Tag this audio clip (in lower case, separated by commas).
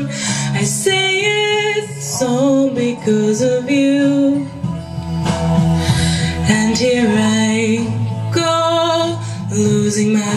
music, female singing